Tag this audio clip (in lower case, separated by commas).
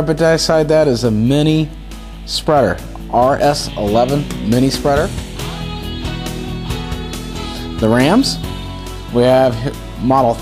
speech, music